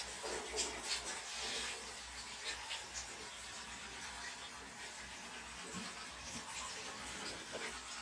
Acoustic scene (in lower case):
restroom